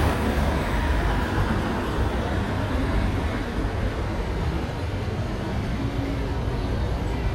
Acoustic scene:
street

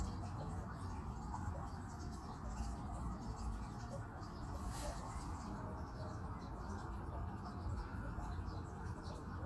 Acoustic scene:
park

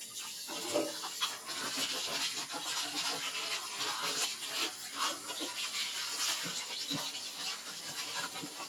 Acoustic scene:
kitchen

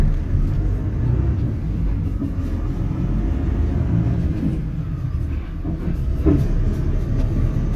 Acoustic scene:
bus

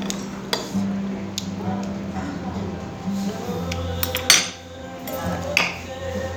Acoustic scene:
restaurant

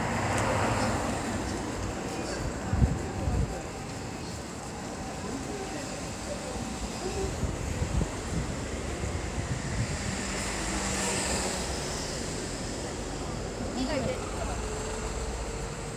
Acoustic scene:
street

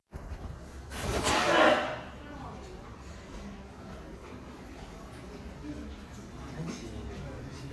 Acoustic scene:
crowded indoor space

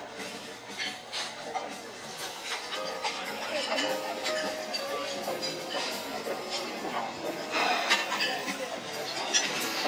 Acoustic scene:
restaurant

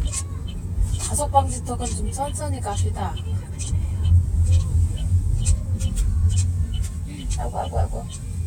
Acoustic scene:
car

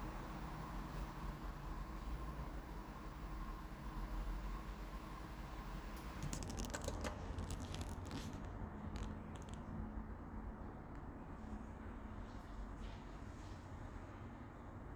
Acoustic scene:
elevator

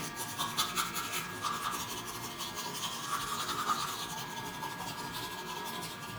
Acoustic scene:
restroom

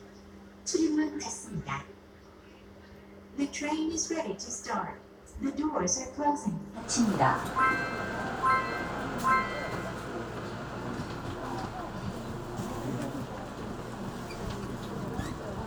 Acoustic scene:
subway train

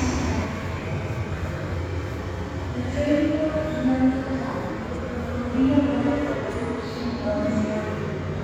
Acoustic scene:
subway station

